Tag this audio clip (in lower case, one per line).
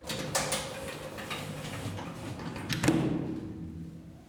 slam
sliding door
door
home sounds